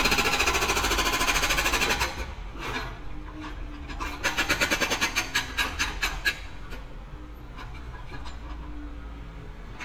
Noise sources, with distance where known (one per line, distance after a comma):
hoe ram, near